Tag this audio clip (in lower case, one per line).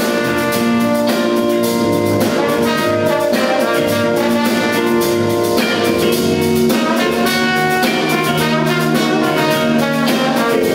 music